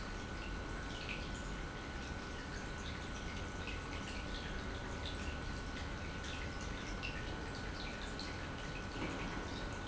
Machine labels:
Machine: pump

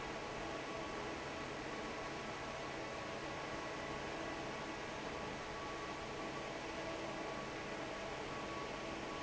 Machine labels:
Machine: fan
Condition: normal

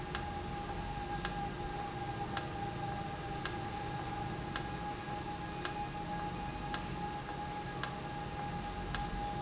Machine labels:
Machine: valve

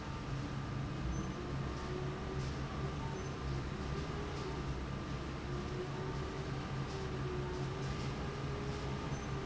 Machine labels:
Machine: fan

